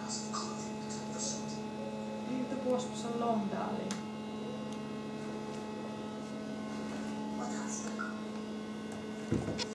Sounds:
Speech

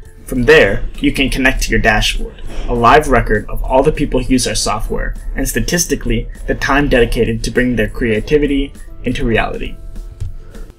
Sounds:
Music, Speech

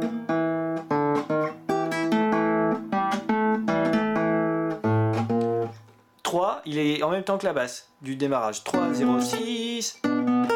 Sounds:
Acoustic guitar, Guitar, Musical instrument, Plucked string instrument, Music, Speech

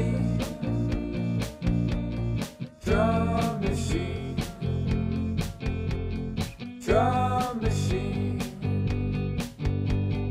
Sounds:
Drum kit, Music, Musical instrument, Drum

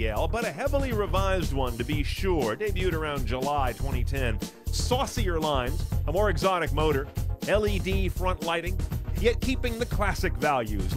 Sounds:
Speech, Music

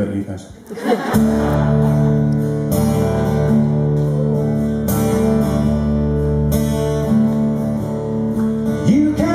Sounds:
Music, Speech

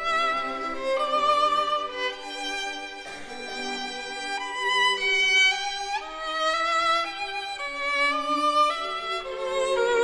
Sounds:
Violin, Music

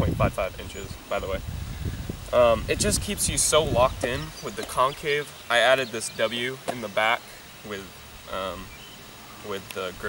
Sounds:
Insect

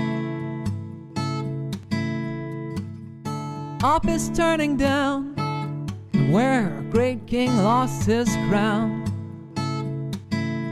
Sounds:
Soundtrack music, Music

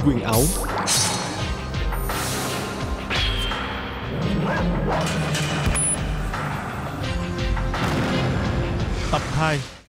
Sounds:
Music, Speech

